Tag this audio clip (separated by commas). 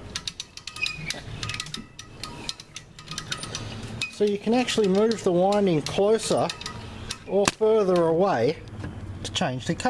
Speech, inside a small room